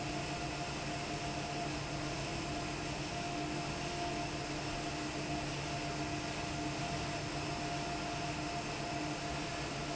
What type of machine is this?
fan